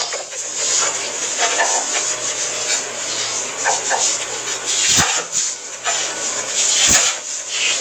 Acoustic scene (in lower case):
kitchen